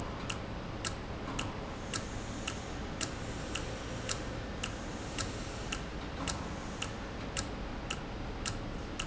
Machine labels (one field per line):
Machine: valve